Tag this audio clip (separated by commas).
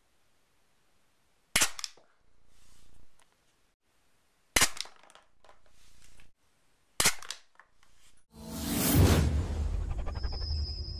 Music, Cap gun, inside a small room